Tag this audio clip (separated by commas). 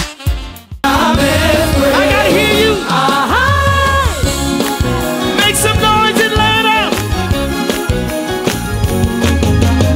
Speech, Music